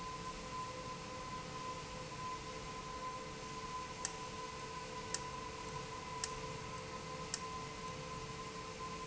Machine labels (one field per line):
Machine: valve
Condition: abnormal